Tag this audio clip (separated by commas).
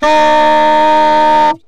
woodwind instrument, Musical instrument, Music